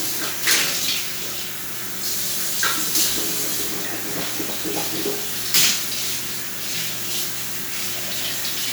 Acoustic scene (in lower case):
restroom